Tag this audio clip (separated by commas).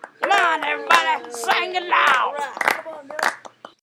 Hands, Clapping, Human voice, Singing